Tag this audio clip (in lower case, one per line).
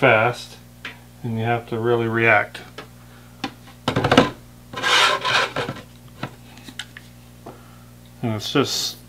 speech
inside a small room